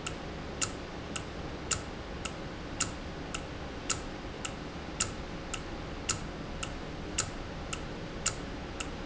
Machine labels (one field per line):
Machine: valve